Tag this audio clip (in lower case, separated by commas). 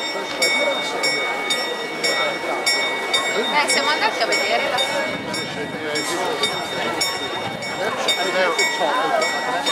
speech